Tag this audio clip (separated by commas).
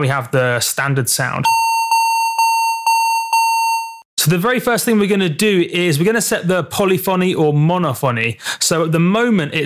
Synthesizer, Music, Speech